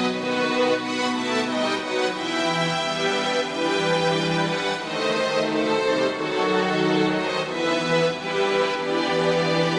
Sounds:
music

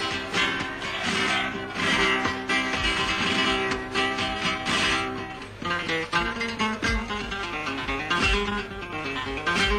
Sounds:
plucked string instrument, musical instrument, bass guitar, guitar, music, strum

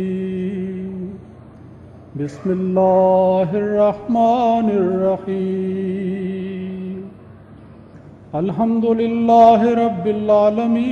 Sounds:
narration, man speaking

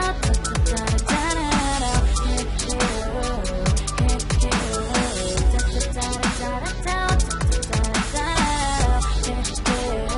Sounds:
music, dubstep

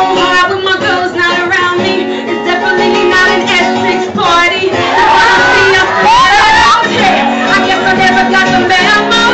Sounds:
female singing, music

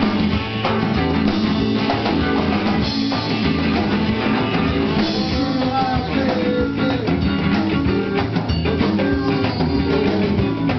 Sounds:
music, percussion

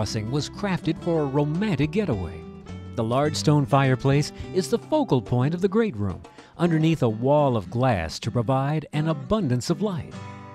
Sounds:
speech, music

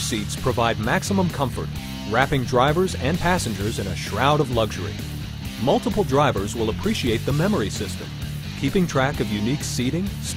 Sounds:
speech, music

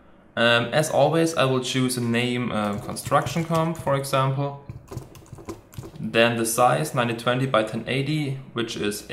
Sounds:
computer keyboard, typing

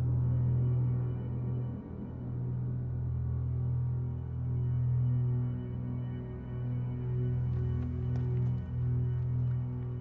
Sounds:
music

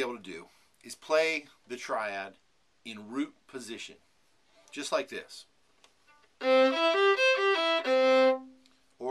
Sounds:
speech, music, fiddle, musical instrument

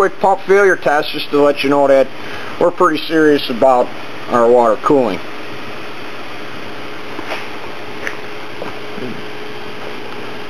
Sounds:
speech

